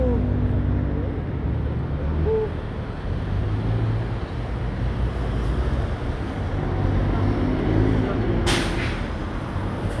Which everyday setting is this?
street